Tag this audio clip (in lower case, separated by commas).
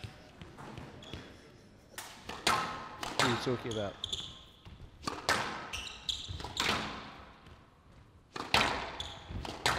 playing squash